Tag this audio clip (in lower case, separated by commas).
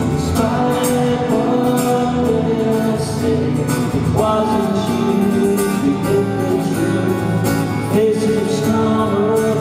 music